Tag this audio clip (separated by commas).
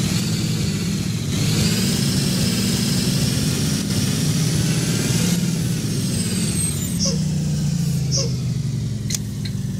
Vehicle, Bus